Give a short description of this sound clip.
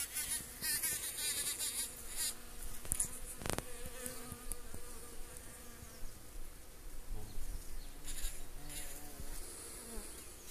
A bug buzzes around microphone